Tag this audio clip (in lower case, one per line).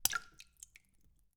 rain
splash
raindrop
water
liquid